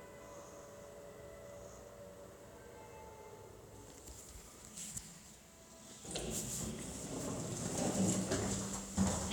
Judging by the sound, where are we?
in an elevator